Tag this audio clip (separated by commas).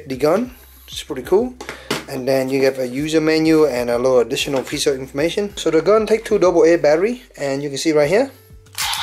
Speech